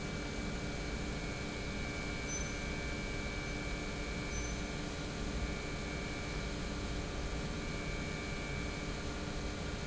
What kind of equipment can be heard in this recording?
pump